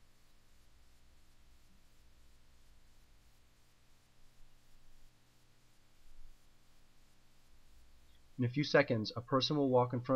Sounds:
Speech

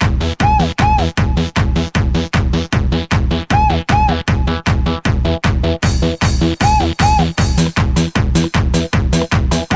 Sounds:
Music

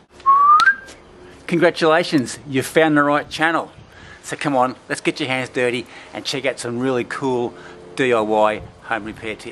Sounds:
Speech, outside, rural or natural

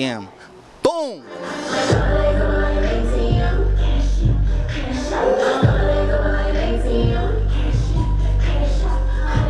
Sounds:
Music

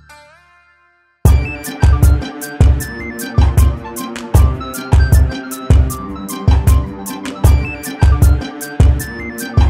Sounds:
Music, Dubstep, Electronic music

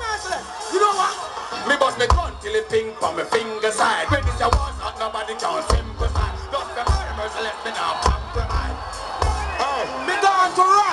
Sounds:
Music, Speech

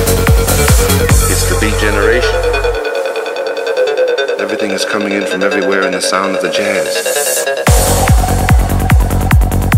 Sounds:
Trance music, Music, Speech, Electronic music

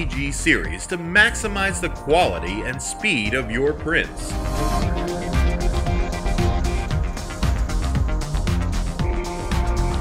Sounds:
Speech, Music

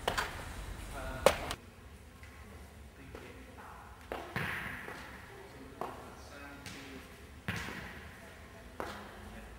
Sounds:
inside a large room or hall, Speech, inside a public space

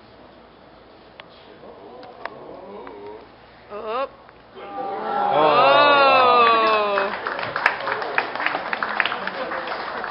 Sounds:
Speech

